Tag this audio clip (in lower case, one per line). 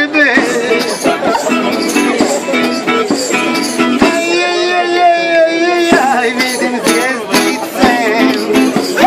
music
speech